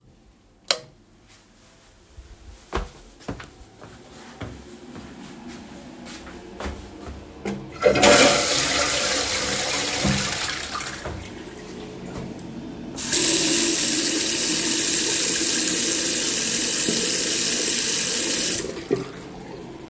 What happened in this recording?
I turned on the light and walked into the toilet. Then I flused the toilet and washed my hands while the ventilation system was running in the background.